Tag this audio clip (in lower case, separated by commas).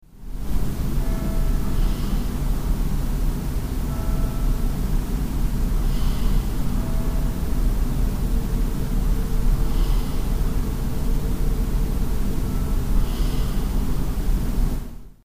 bell, church bell